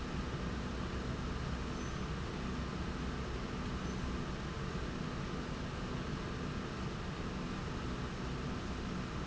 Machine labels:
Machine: slide rail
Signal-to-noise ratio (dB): -6 dB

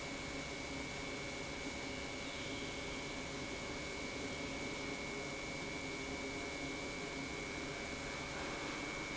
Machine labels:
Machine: pump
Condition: normal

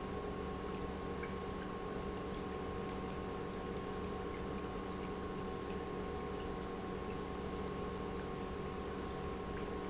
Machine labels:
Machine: pump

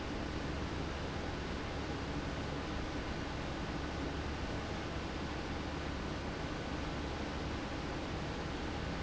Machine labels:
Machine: fan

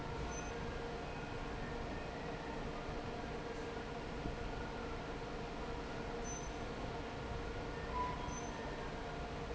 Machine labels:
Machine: fan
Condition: normal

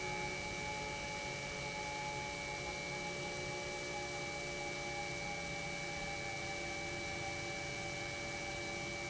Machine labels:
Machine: pump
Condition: normal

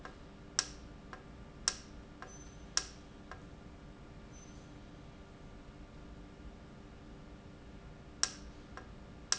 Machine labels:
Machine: valve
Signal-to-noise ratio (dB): 6 dB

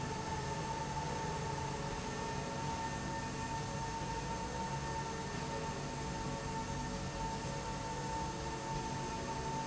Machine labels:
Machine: slide rail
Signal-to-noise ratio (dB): -6 dB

